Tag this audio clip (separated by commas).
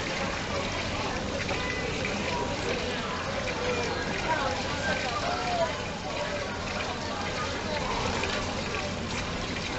otter growling